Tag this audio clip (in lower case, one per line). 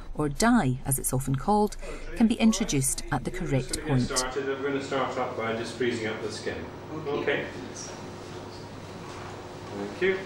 narration